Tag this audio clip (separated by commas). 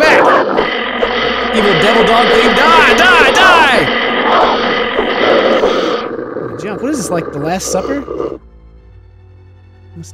Speech, inside a large room or hall, Music